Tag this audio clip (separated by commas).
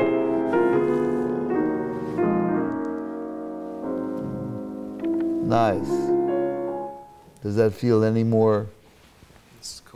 Speech, Music